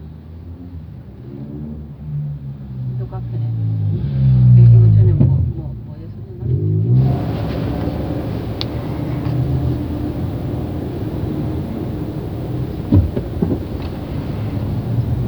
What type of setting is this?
car